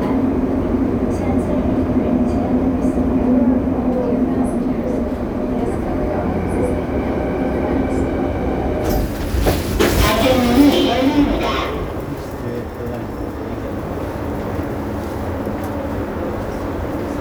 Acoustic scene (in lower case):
subway train